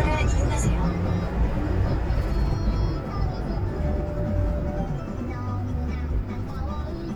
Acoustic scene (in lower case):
car